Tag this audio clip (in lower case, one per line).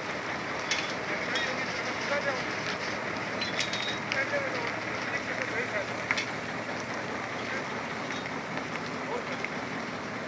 vehicle
speech